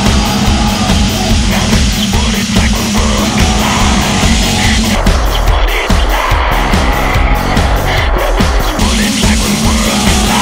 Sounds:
music, outside, urban or man-made, vehicle

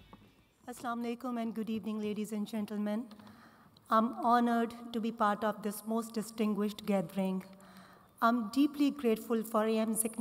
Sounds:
speech, woman speaking, monologue

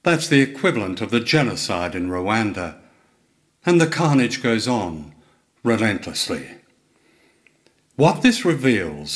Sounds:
speech

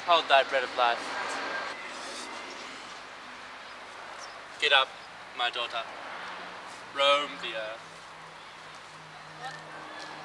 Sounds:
speech

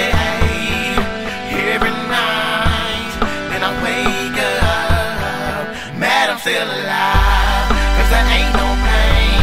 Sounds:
independent music, music

